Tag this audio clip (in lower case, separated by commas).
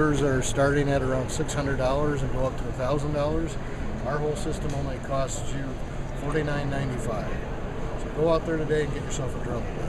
speech